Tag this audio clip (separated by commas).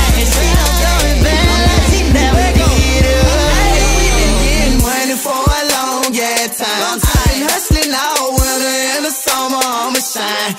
Music, Singing